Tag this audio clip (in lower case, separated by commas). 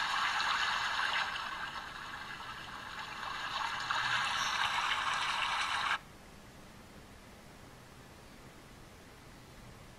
water